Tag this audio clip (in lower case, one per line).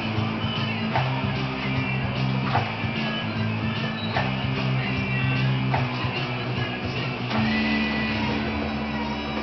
acoustic guitar
strum
music
guitar
electric guitar
plucked string instrument
musical instrument